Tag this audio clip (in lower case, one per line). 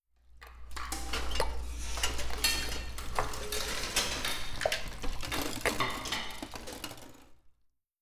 dishes, pots and pans
home sounds
cutlery